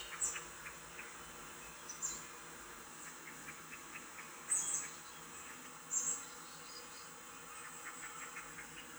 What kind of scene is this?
park